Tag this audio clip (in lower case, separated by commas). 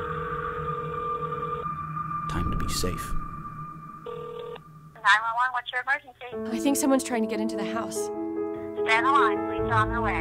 music, speech